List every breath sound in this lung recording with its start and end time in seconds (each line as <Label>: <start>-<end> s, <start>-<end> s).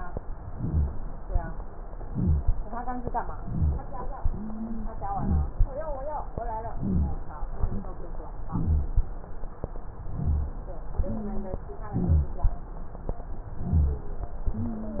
Inhalation: 0.47-0.95 s, 2.07-2.54 s, 3.34-3.81 s, 5.08-5.56 s, 6.72-7.21 s, 8.50-8.99 s, 10.11-10.61 s, 11.94-12.43 s, 13.60-14.10 s
Wheeze: 4.31-4.92 s, 11.01-11.69 s
Rhonchi: 0.47-0.95 s, 2.07-2.54 s, 3.34-3.81 s, 5.08-5.56 s, 6.72-7.21 s, 8.50-8.99 s, 10.11-10.61 s, 11.94-12.43 s, 13.60-14.10 s